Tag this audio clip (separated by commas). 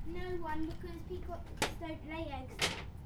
Child speech, Speech, Human voice